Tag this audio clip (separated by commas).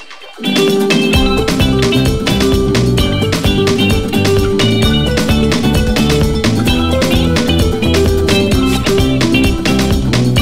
Soundtrack music, Music